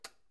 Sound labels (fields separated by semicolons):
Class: switch; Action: being turned on; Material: plastic